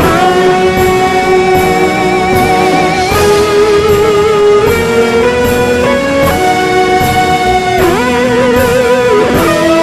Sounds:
music

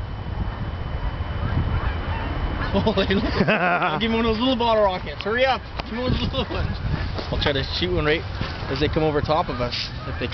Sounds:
speech

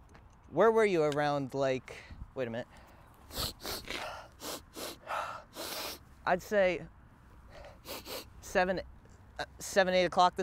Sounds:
speech

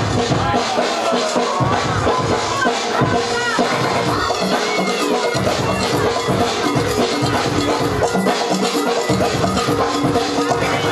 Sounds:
speech
music

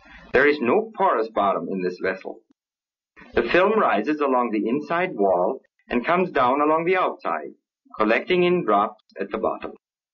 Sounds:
speech

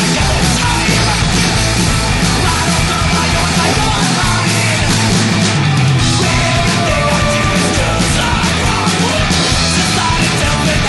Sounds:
music

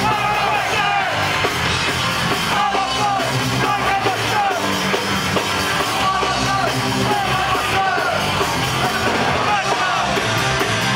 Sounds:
music

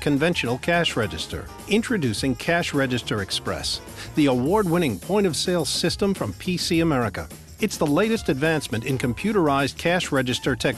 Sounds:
music
speech

